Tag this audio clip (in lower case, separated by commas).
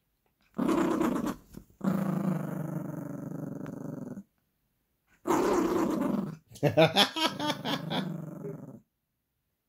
dog growling